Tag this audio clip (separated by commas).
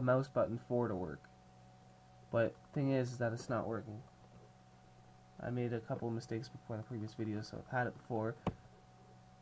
Speech